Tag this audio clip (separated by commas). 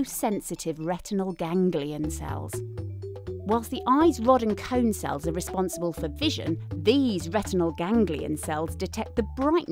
Music, Speech